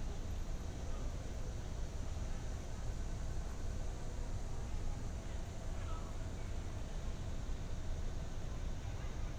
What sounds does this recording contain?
background noise